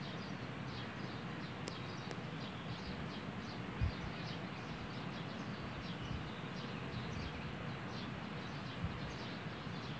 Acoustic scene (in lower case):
park